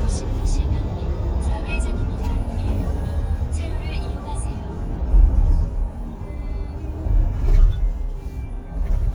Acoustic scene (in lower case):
car